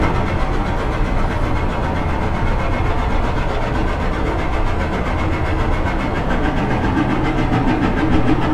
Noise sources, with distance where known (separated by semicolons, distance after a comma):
hoe ram, near